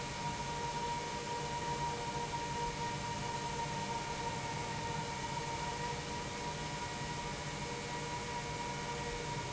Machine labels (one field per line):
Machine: pump